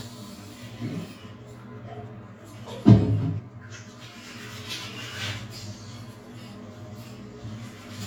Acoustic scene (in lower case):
restroom